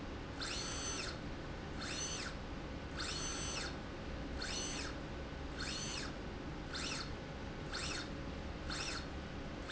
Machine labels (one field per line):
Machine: slide rail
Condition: normal